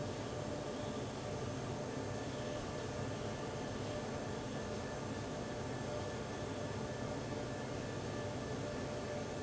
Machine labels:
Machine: fan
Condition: abnormal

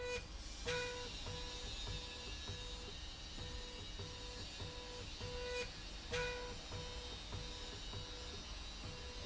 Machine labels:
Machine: slide rail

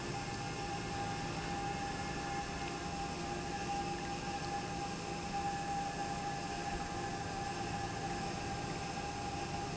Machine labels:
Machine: pump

